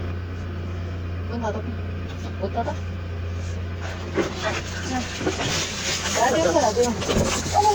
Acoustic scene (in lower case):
car